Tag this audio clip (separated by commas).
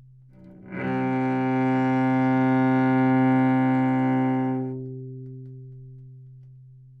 Bowed string instrument, Musical instrument, Music